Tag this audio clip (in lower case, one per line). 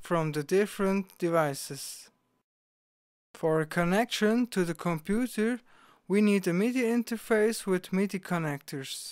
speech